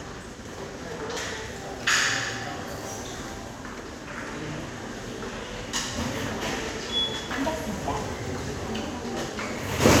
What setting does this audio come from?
subway station